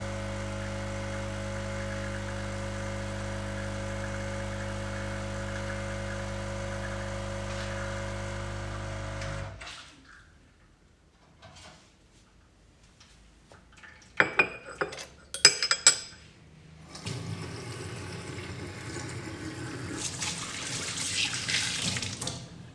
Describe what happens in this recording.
I turned on the coffee machine, let some coffee run into a cup, set the cup onto a saucer, placed a spoon beside it and then briefly opened the tap to rinse the cloth.